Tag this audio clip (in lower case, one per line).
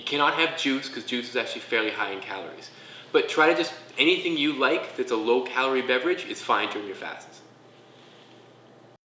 speech